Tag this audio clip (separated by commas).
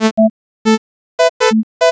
Alarm